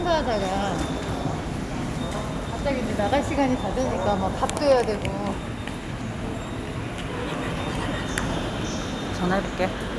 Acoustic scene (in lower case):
subway station